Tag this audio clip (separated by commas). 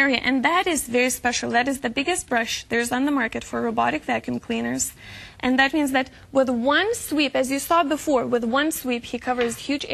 Speech